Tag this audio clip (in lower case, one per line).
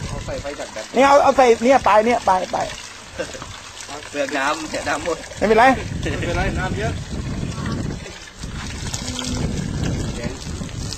speech